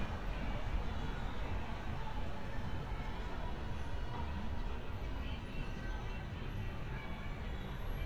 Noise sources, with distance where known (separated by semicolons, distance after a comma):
music from a fixed source